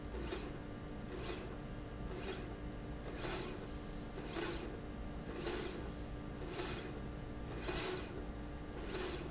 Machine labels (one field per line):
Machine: slide rail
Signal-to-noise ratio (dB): 0 dB